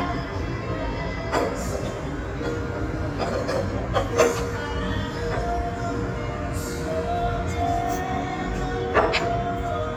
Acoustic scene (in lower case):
restaurant